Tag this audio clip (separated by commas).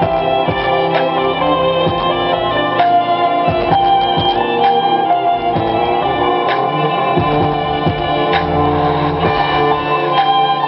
Musical instrument, Music, Violin